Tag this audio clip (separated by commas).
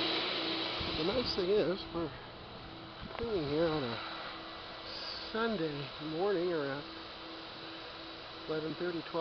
Speech